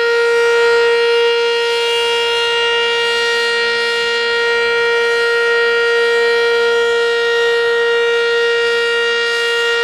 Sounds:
Civil defense siren, Siren

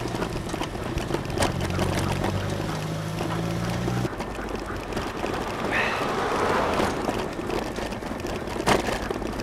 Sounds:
Bicycle, Vehicle

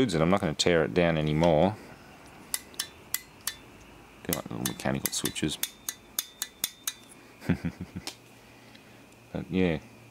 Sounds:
inside a small room, Speech

